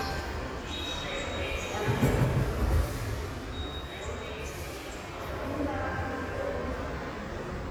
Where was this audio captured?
in a subway station